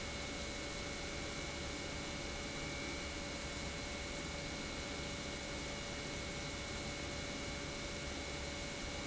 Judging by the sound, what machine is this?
pump